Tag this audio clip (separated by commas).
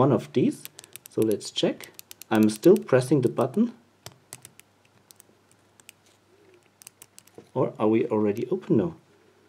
Speech